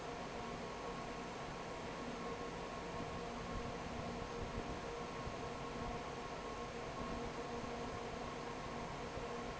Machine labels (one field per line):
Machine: fan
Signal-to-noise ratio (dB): 6 dB